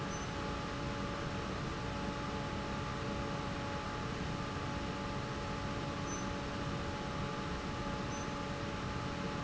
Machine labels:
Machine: fan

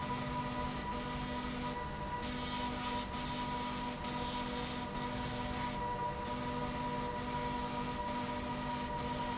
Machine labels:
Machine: slide rail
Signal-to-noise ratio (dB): -6 dB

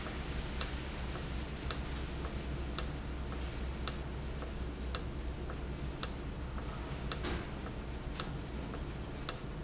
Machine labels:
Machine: valve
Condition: normal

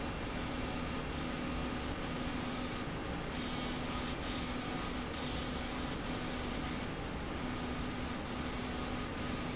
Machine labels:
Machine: slide rail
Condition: abnormal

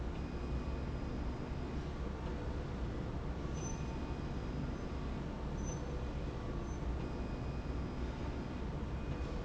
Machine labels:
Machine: slide rail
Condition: normal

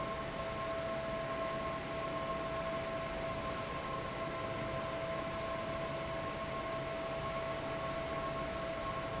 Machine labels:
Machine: fan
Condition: abnormal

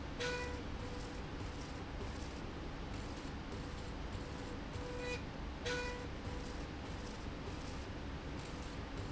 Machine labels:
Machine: slide rail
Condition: normal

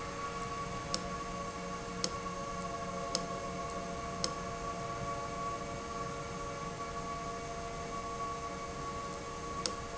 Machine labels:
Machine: valve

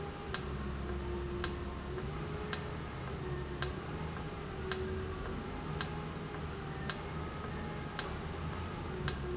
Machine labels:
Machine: valve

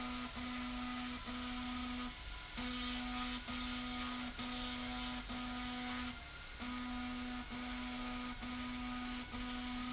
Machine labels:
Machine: slide rail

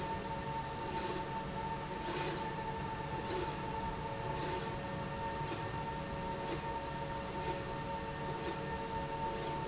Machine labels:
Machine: slide rail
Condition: normal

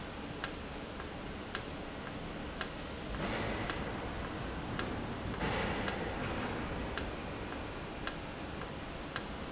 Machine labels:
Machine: valve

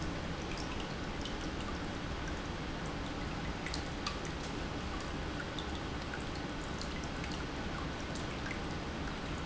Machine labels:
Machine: pump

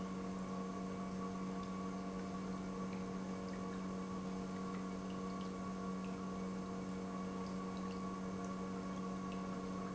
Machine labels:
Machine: pump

